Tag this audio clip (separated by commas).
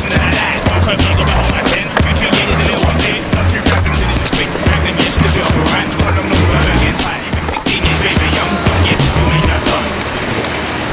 Skateboard, Music